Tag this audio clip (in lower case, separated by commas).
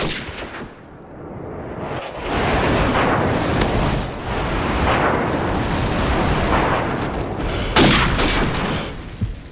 machine gun, boom